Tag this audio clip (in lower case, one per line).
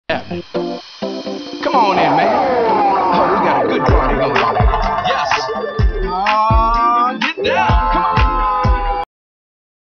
soundtrack music
music